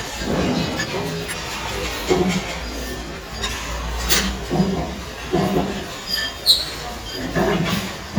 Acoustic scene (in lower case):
restaurant